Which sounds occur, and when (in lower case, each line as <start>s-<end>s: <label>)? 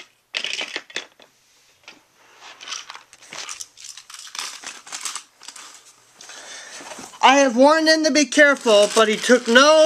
0.0s-9.8s: background noise
0.3s-1.2s: clatter
1.2s-1.7s: breathing
1.8s-1.9s: clatter
2.0s-2.6s: breathing
2.4s-3.0s: clatter
3.1s-5.2s: clatter
5.4s-5.9s: clatter
6.2s-7.0s: breathing
7.2s-9.8s: woman speaking